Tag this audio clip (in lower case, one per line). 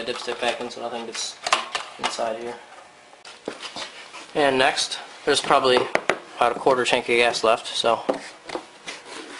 speech